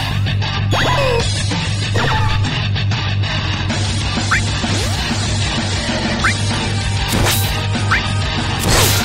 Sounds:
music, crash

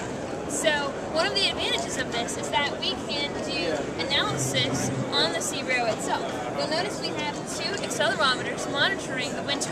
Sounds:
speech

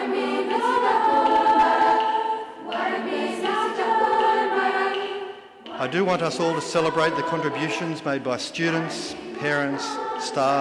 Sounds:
music, male speech, speech, monologue

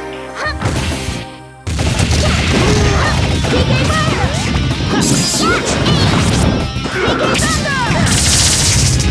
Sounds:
smash, music

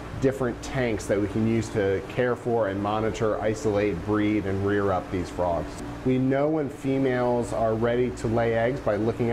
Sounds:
speech

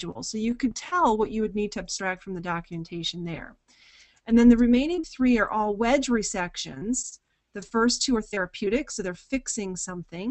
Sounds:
narration

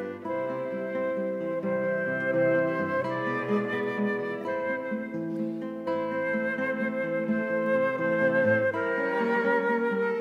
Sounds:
plucked string instrument, music, guitar, strum, cello, musical instrument

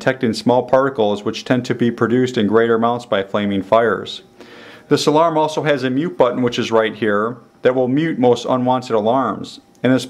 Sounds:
speech

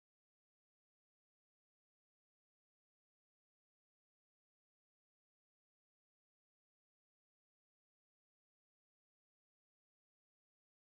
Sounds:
music

